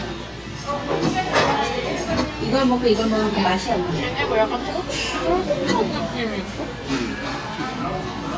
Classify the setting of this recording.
restaurant